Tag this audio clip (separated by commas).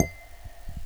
Domestic sounds, dishes, pots and pans